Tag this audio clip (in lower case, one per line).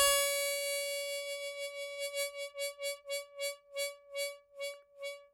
music
harmonica
musical instrument